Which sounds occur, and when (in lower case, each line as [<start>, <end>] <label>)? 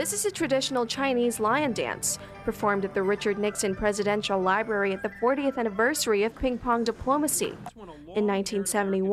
[0.01, 2.14] female speech
[0.01, 5.79] music
[2.42, 7.52] female speech
[6.05, 9.12] background noise
[6.84, 6.97] tap
[7.57, 7.73] tap
[7.75, 9.12] man speaking
[8.12, 9.12] female speech